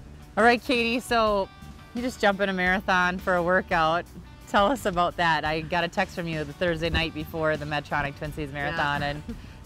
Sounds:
outside, urban or man-made, Music, Speech

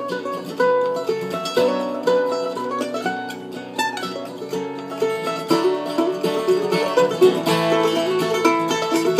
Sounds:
Plucked string instrument, Music, Mandolin, Country, Musical instrument, Guitar

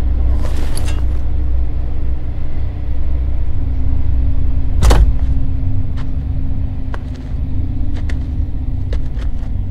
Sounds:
Vehicle

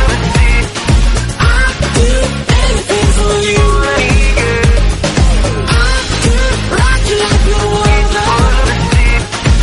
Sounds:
Pop music, Music

